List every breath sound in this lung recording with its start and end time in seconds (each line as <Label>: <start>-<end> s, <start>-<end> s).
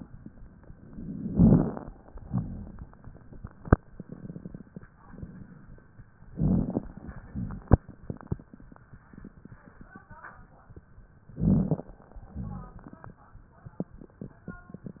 Inhalation: 1.06-1.86 s, 6.34-6.95 s, 11.37-11.97 s
Exhalation: 2.22-2.90 s, 7.27-7.95 s, 12.33-13.02 s
Rhonchi: 2.22-2.90 s, 7.27-7.95 s, 12.33-13.02 s
Crackles: 1.06-1.86 s, 6.34-6.95 s, 11.37-11.97 s